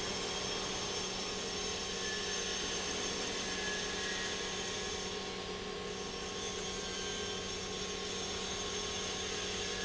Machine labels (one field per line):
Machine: pump